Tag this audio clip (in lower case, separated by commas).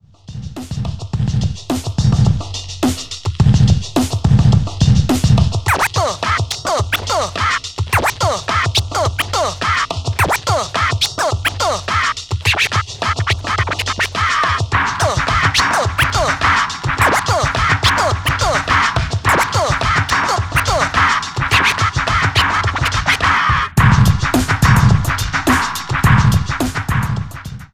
musical instrument, music, scratching (performance technique)